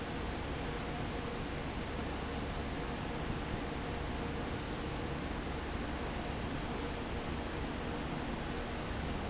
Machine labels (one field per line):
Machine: fan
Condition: abnormal